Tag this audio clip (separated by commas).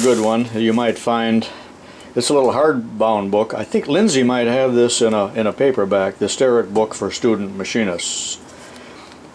Speech